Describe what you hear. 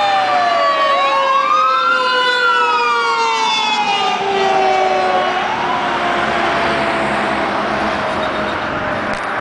Sirens blare then get softer as cars pass by